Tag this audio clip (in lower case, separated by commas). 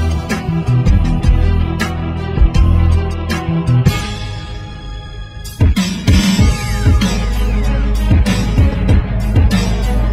music, psychedelic rock